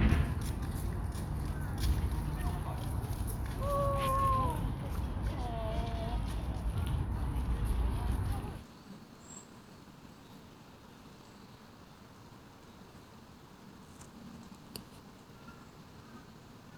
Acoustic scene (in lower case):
park